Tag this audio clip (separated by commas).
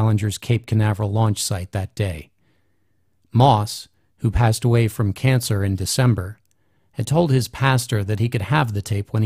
Speech